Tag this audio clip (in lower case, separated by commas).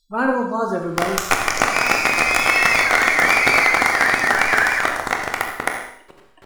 applause, human group actions